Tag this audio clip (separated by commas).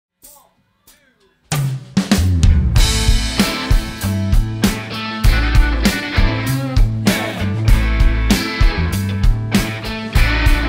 Speech, Rimshot, Music, Drum kit, Drum